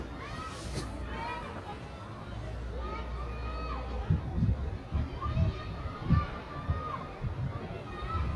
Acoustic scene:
residential area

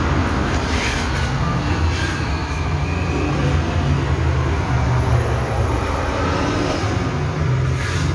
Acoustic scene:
street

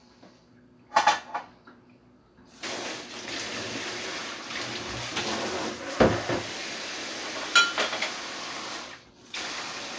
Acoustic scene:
kitchen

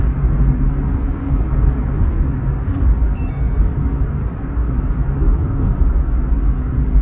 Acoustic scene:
car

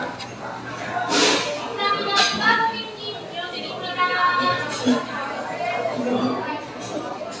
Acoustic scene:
cafe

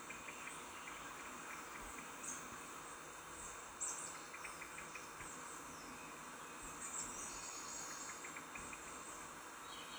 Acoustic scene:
park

